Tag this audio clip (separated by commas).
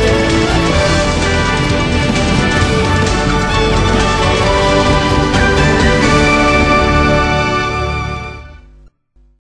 Music, Television